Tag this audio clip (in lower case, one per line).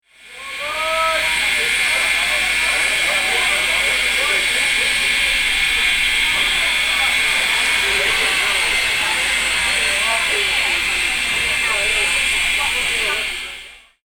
vehicle
rail transport
train